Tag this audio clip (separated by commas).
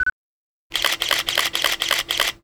Camera, Mechanisms